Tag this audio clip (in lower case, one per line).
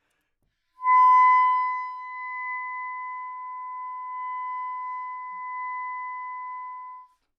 music
musical instrument
woodwind instrument